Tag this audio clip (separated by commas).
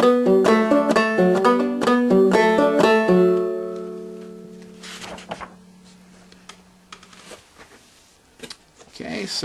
Country, Musical instrument, Banjo, Music, Plucked string instrument, Speech